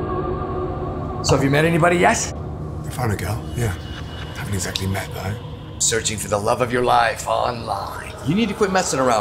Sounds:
speech

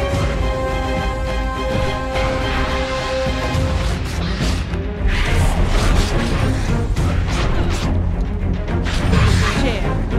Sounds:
speech
music

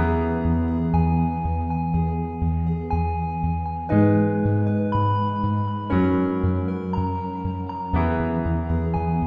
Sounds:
music

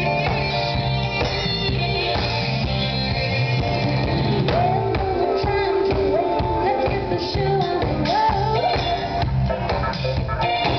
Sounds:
orchestra
drum kit
musical instrument
drum
music

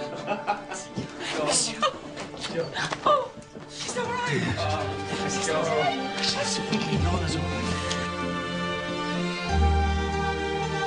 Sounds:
theme music
music
speech

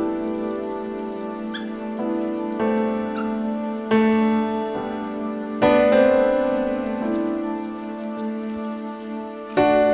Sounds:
animal
bow-wow
dog
pets
speech
whimper (dog)

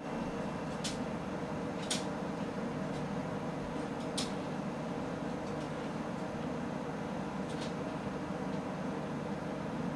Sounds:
silence

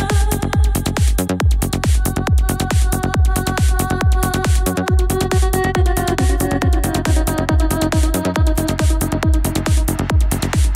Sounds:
techno
electronic music
music

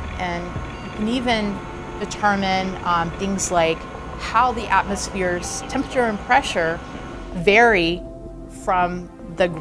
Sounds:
speech
music
inside a small room

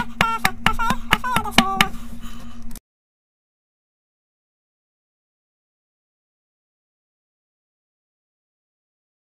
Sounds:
music

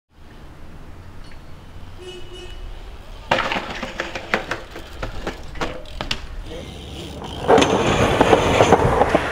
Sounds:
skateboarding
skateboard

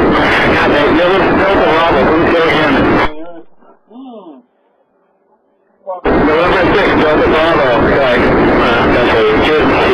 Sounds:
speech

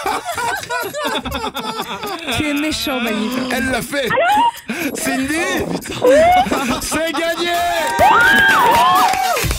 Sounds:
speech
music

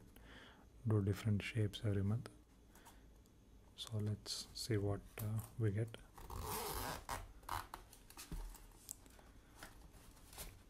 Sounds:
inside a small room
speech

